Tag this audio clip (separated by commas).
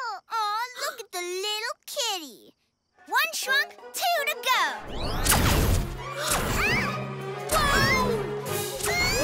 Music, Speech